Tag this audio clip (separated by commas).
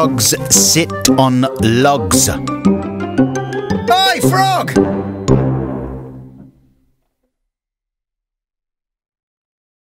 Speech, Music